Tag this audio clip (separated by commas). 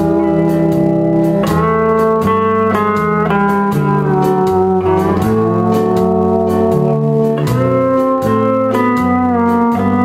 Music, Blues